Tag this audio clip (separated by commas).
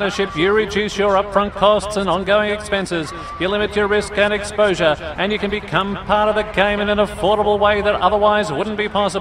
Speech